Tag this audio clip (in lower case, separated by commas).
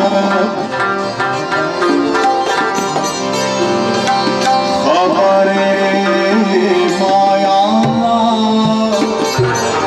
traditional music, music